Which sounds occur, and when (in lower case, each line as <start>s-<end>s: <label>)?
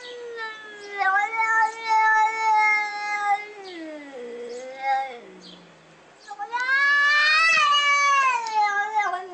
0.0s-0.2s: bird song
0.0s-5.7s: cat
0.0s-9.3s: wind
0.5s-1.1s: bird song
1.4s-1.8s: bird song
2.3s-2.6s: bird song
3.6s-3.9s: bird song
4.4s-4.7s: bird song
5.4s-5.7s: bird song
6.2s-6.4s: bird song
6.2s-9.3s: cat
6.5s-6.7s: tick
7.0s-7.3s: bird song
7.5s-7.6s: tick
8.2s-8.3s: tick
8.4s-8.6s: tick
9.0s-9.1s: tick